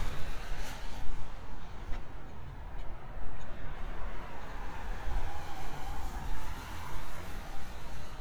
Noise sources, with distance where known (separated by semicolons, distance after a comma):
medium-sounding engine, near